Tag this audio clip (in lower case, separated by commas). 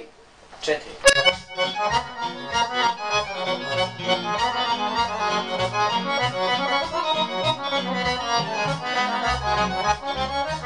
accordion, speech, musical instrument, music